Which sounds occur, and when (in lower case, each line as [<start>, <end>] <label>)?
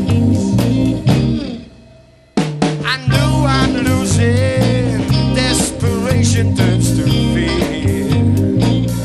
[0.00, 1.66] male singing
[0.00, 9.04] music
[2.79, 8.24] male singing